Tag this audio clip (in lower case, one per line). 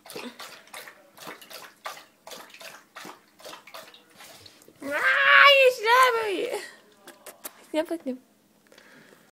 speech